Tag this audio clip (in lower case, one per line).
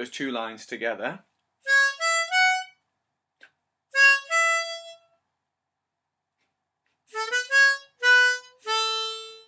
playing harmonica